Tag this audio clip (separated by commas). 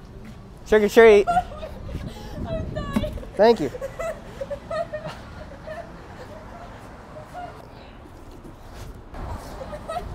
Speech